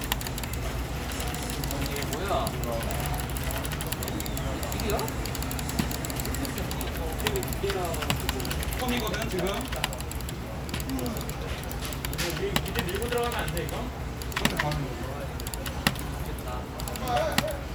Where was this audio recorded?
in a crowded indoor space